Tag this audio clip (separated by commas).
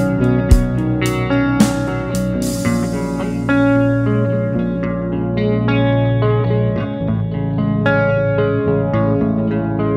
Music, outside, urban or man-made